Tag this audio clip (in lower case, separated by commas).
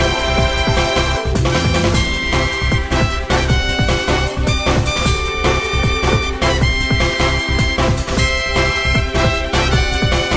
music